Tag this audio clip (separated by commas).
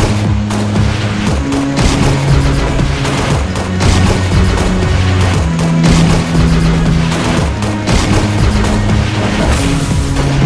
Music